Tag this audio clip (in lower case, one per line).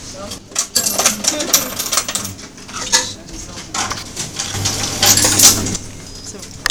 home sounds
coin (dropping)